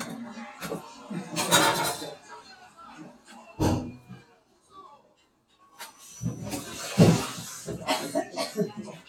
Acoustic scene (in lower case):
kitchen